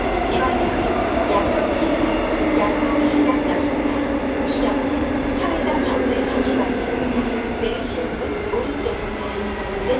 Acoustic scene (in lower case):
subway train